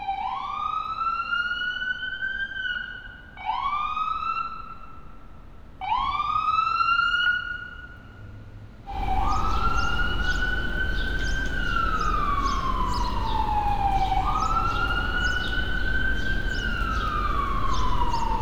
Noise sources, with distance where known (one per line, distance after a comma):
siren, near